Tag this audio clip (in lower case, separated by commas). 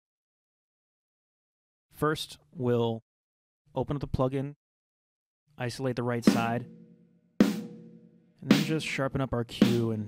music, speech